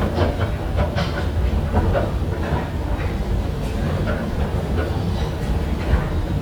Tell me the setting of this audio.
subway station